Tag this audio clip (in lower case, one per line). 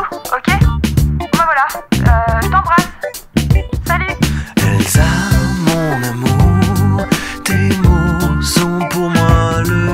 speech
music